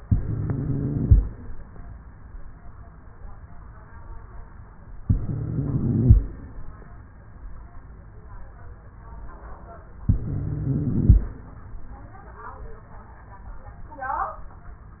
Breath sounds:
0.00-1.21 s: inhalation
0.00-1.21 s: wheeze
5.00-6.21 s: inhalation
5.00-6.21 s: wheeze
10.03-11.25 s: inhalation
10.03-11.25 s: wheeze

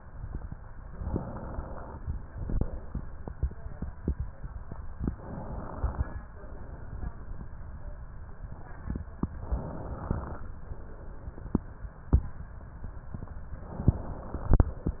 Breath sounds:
0.91-1.94 s: inhalation
2.07-3.27 s: exhalation
5.12-6.28 s: inhalation
6.28-7.47 s: exhalation
9.42-10.55 s: inhalation
10.55-11.68 s: exhalation
13.66-14.78 s: inhalation
14.78-15.00 s: exhalation

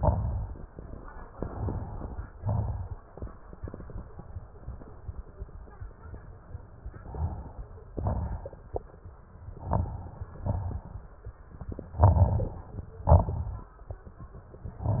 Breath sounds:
0.00-0.71 s: exhalation
0.00-0.71 s: crackles
1.37-2.25 s: inhalation
1.37-2.25 s: crackles
2.33-3.02 s: exhalation
2.33-3.02 s: crackles
6.96-7.74 s: inhalation
6.96-7.74 s: crackles
7.92-8.71 s: exhalation
7.92-8.71 s: crackles
9.49-10.27 s: inhalation
9.49-10.27 s: crackles
10.32-11.20 s: exhalation
10.32-11.20 s: crackles
11.99-12.87 s: inhalation
11.99-12.87 s: crackles
13.04-13.76 s: exhalation
13.04-13.76 s: crackles
14.77-15.00 s: inhalation
14.77-15.00 s: crackles

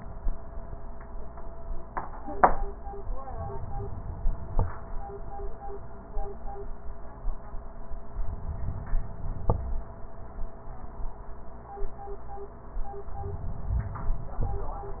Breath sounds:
3.33-4.55 s: inhalation
8.26-9.47 s: inhalation
13.21-14.70 s: inhalation

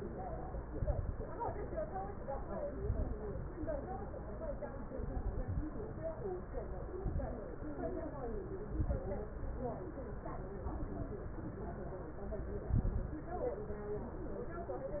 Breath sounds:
0.64-1.23 s: inhalation
0.64-1.23 s: crackles
2.70-3.29 s: inhalation
2.70-3.29 s: crackles
4.92-5.70 s: inhalation
4.92-5.70 s: crackles
6.99-7.66 s: inhalation
6.99-7.66 s: crackles
8.70-9.14 s: inhalation
8.70-9.14 s: crackles
12.69-13.26 s: inhalation
12.69-13.26 s: crackles

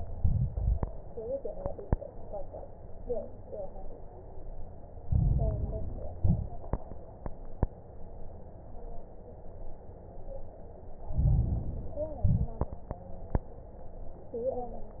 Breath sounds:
0.08-0.85 s: exhalation
0.08-0.85 s: crackles
5.02-6.17 s: inhalation
5.02-6.17 s: crackles
6.16-6.72 s: exhalation
6.18-6.72 s: crackles
11.08-12.23 s: inhalation
12.24-12.79 s: exhalation
12.24-12.79 s: crackles

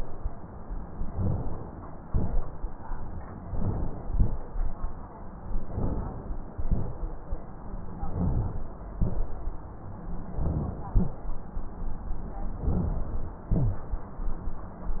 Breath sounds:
1.08-2.05 s: inhalation
1.10-1.43 s: rhonchi
2.05-3.46 s: exhalation
3.51-4.37 s: inhalation
4.40-5.62 s: exhalation
5.67-6.55 s: inhalation
6.64-8.08 s: exhalation
8.08-8.57 s: rhonchi
8.08-8.99 s: inhalation
9.01-10.38 s: exhalation
10.36-10.75 s: rhonchi
10.38-11.16 s: inhalation
11.20-12.62 s: exhalation
12.66-13.51 s: inhalation
13.53-13.92 s: rhonchi
13.53-15.00 s: exhalation

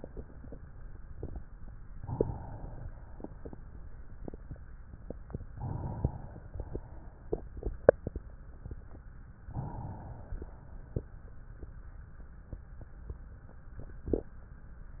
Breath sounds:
1.95-2.88 s: inhalation
2.88-4.78 s: exhalation
5.53-6.52 s: inhalation
6.51-7.86 s: exhalation
9.44-10.39 s: inhalation
10.42-12.39 s: exhalation

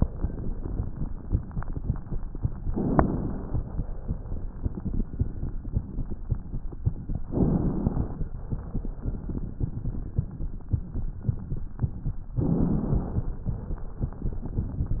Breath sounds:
2.69-3.80 s: inhalation
2.69-3.80 s: crackles
7.27-8.37 s: inhalation
7.27-8.37 s: crackles
12.39-13.49 s: inhalation
12.39-13.49 s: crackles

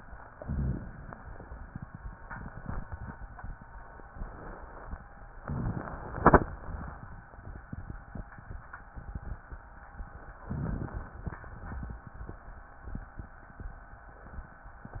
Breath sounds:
0.38-1.11 s: inhalation
0.42-0.88 s: rhonchi
5.40-6.04 s: inhalation
5.40-6.04 s: rhonchi
10.49-11.29 s: inhalation
11.29-12.60 s: exhalation
11.29-12.60 s: crackles

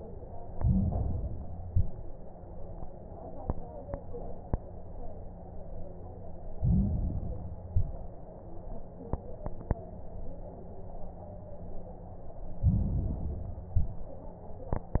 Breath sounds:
0.49-1.61 s: inhalation
0.49-1.61 s: crackles
1.61-2.14 s: exhalation
1.61-2.14 s: crackles
6.52-7.64 s: inhalation
6.52-7.64 s: crackles
7.71-8.24 s: exhalation
7.71-8.24 s: crackles
12.54-13.66 s: inhalation
12.54-13.66 s: crackles
13.76-14.29 s: exhalation
13.76-14.29 s: crackles

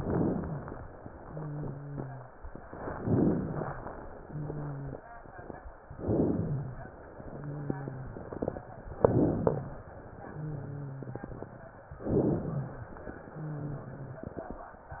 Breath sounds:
0.00-0.69 s: inhalation
0.00-0.69 s: crackles
1.16-2.32 s: wheeze
2.98-3.87 s: inhalation
2.98-3.87 s: crackles
4.17-5.03 s: wheeze
5.98-6.87 s: inhalation
5.98-6.87 s: crackles
7.21-8.39 s: wheeze
8.97-9.87 s: inhalation
8.97-9.87 s: crackles
10.28-11.57 s: wheeze
12.03-12.92 s: inhalation
12.03-12.92 s: crackles
13.30-14.48 s: wheeze

